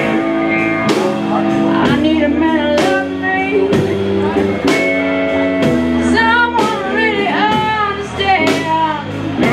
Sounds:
music

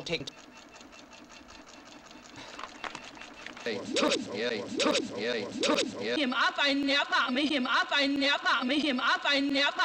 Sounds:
inside a large room or hall
speech

